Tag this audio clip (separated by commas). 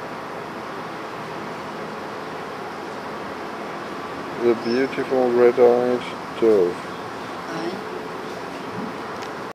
Speech